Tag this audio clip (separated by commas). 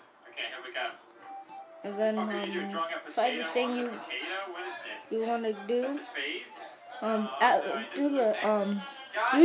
Speech